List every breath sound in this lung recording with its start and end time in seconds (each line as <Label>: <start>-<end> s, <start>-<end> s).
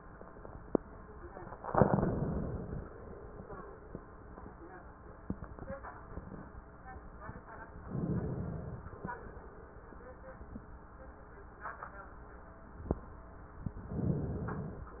Inhalation: 1.58-3.16 s, 7.80-9.08 s, 13.66-14.93 s